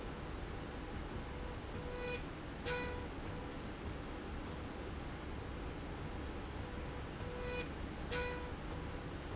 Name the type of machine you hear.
slide rail